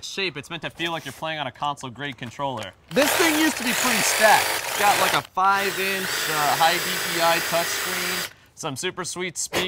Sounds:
Speech

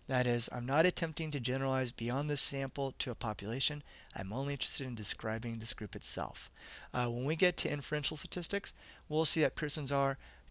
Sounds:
Speech

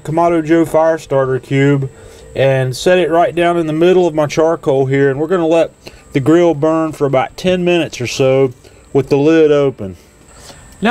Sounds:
Speech

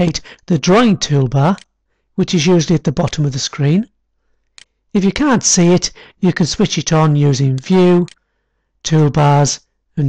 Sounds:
Speech

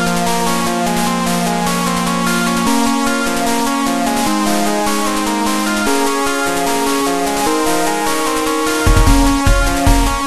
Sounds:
Video game music, Music

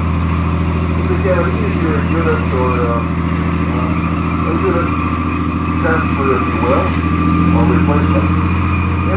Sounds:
Vehicle, Speech, Car

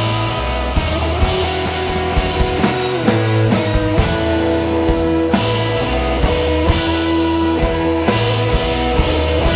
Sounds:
Drum kit, Musical instrument, Music, Drum

